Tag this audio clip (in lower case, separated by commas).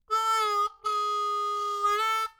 harmonica, musical instrument, music